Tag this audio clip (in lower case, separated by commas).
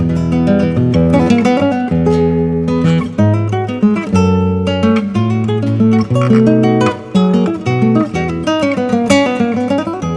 plucked string instrument, guitar, flamenco, classical music, music, musical instrument